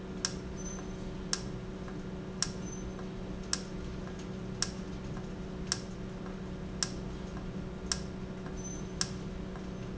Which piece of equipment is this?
valve